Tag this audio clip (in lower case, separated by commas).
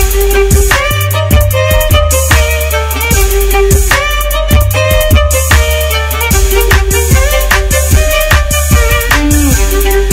fiddle, musical instrument, music